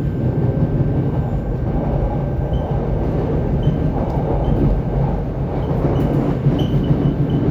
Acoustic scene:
subway train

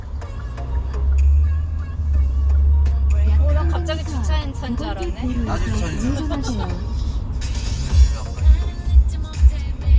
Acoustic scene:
car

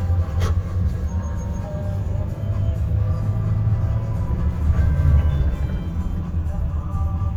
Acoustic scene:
car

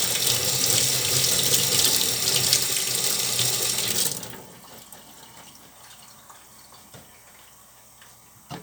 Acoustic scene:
kitchen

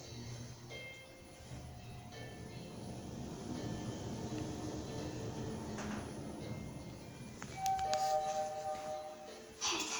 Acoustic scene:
elevator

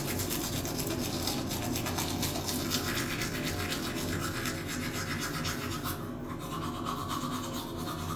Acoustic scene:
restroom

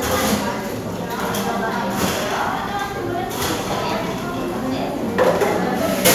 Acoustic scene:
cafe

